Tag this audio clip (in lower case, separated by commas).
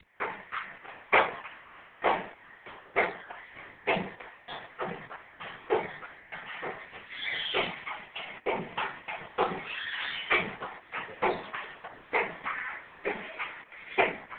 mechanisms